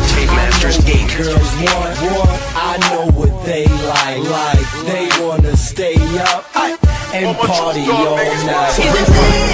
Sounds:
Music

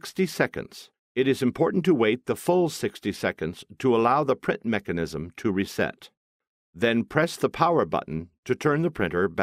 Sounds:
Speech

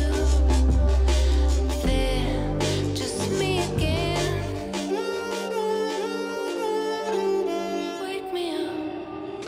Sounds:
Tender music, Music

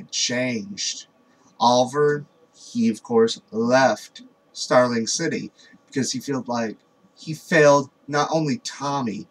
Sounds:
Speech

